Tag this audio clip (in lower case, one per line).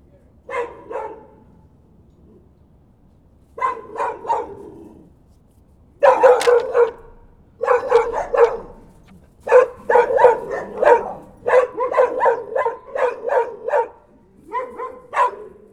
bark
domestic animals
dog
animal